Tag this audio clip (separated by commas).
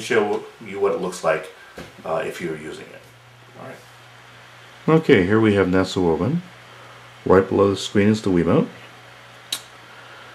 Speech